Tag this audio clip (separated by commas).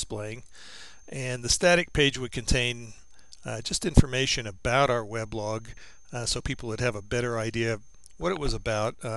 Speech